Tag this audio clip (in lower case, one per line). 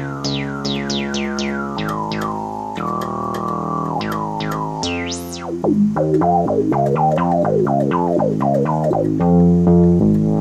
music
sampler